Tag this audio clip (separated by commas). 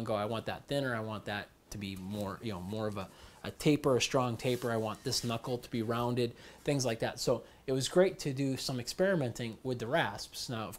Speech